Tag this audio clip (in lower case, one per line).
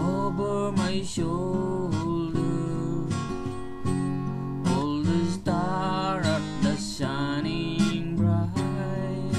music
acoustic guitar